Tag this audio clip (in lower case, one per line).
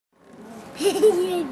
laughter
human voice